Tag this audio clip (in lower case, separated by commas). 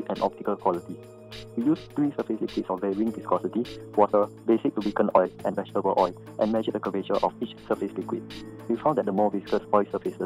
speech, music